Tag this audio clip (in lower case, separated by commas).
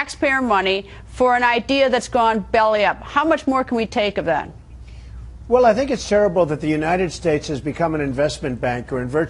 speech